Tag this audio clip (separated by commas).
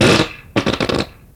Fart